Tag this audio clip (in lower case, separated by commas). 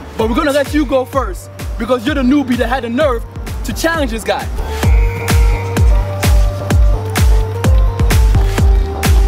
speech, music